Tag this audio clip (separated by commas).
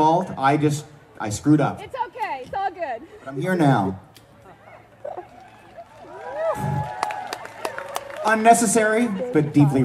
Speech, Music